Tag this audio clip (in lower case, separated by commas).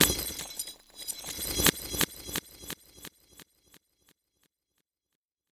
shatter, glass